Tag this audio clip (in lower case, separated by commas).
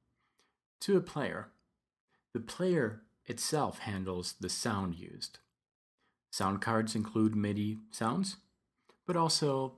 speech